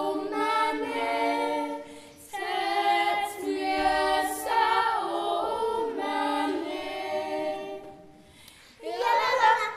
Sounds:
Singing, Choir

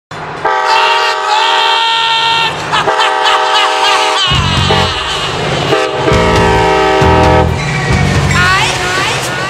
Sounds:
Clickety-clack, Train horn, Train, Railroad car, Rail transport

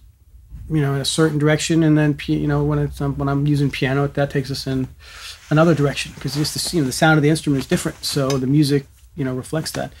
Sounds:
Speech

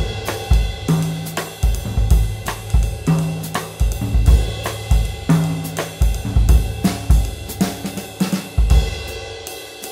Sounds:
playing cymbal

